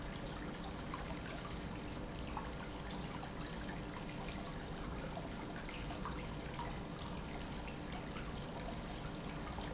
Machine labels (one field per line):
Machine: pump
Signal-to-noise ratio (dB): 0 dB